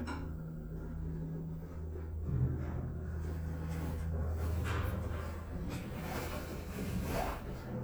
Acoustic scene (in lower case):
elevator